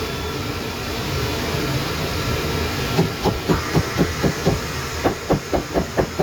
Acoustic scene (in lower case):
kitchen